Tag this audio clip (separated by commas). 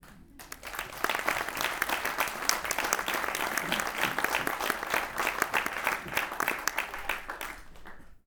Applause, Human group actions